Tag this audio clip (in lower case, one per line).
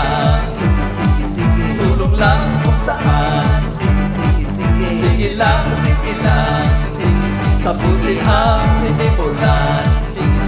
pop music
music